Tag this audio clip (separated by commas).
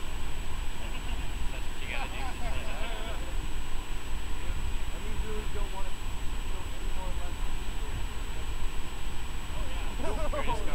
Speech